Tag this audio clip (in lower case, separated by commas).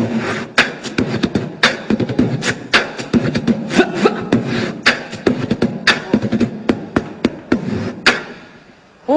beat boxing